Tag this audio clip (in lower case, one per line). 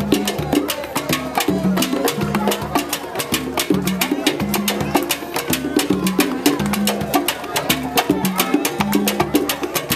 percussion
music